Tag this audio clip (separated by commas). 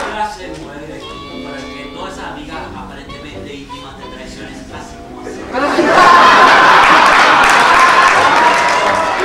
Speech, Music